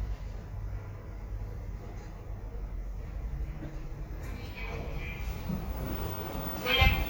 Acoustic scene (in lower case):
elevator